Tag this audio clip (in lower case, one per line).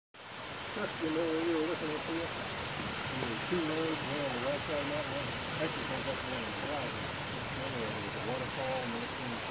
waterfall burbling